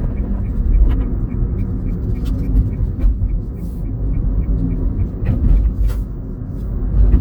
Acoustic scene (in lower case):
car